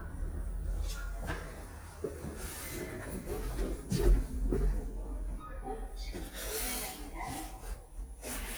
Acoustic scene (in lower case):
elevator